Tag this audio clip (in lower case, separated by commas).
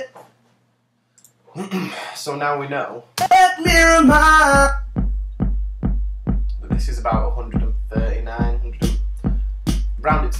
speech, music